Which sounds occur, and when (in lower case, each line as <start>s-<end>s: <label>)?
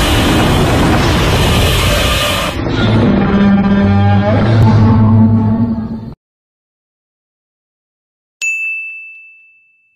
0.0s-6.1s: sound effect
8.4s-9.9s: ding